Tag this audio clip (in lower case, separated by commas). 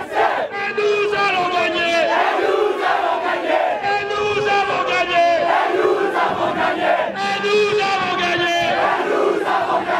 battle cry, crowd